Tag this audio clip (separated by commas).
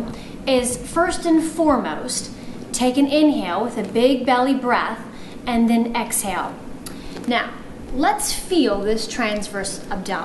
Female speech, Speech